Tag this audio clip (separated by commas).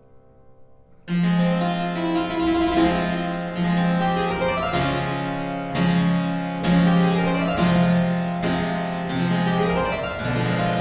playing harpsichord